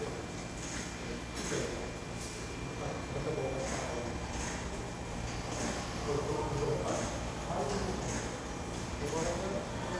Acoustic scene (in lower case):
subway station